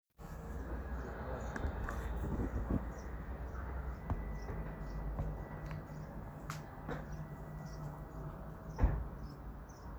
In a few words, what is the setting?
residential area